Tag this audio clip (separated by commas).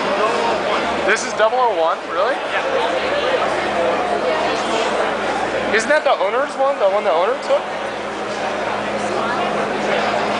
Speech